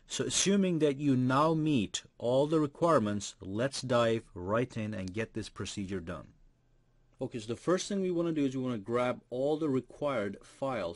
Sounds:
speech

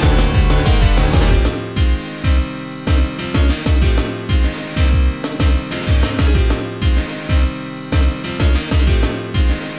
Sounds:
electronic music, music

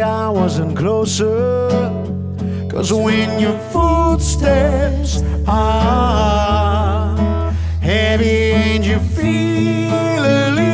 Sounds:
music

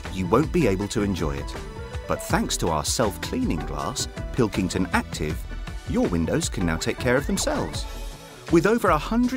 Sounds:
speech, music

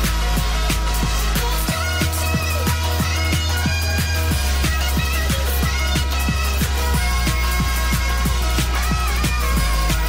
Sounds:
music

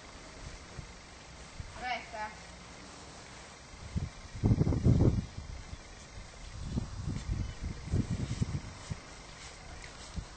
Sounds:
speech

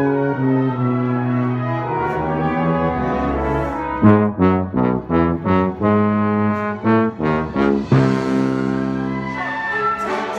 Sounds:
brass instrument, music, trombone

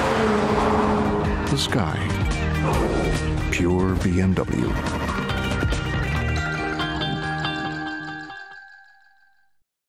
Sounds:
music, speech

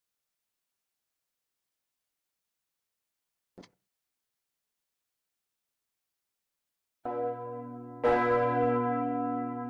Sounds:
church bell

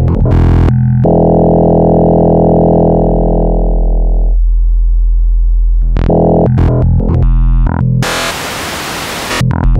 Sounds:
synthesizer

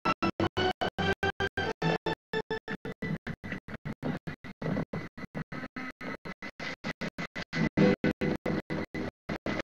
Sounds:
music, clip-clop, horse, animal

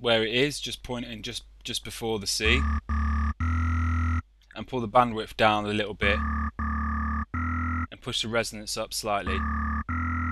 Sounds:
synthesizer, electronic music, music, speech

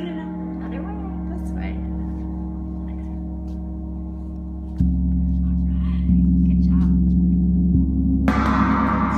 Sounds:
playing gong

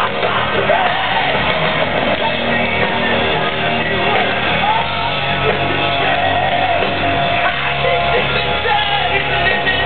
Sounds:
music

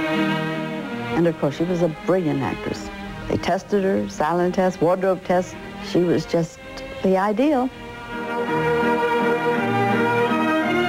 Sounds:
speech, music

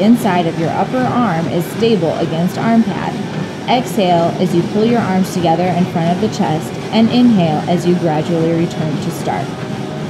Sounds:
electronic music, techno, music, speech

